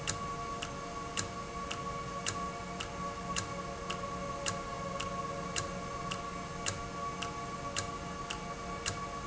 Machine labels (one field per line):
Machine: valve